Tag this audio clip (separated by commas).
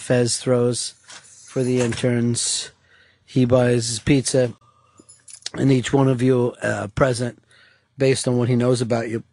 Speech